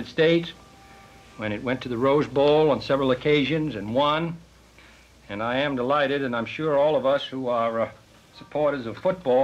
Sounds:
Speech

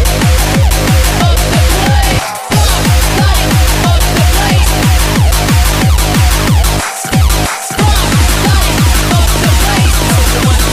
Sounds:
Drum

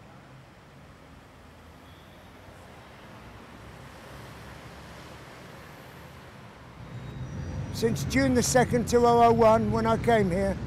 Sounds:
man speaking, Narration, Speech

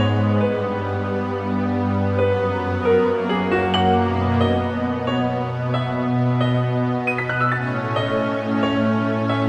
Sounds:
Music, Background music

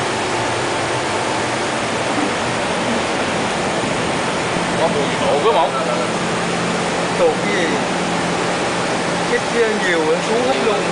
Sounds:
Speech

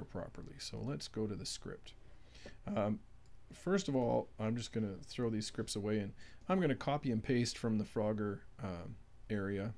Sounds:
Speech

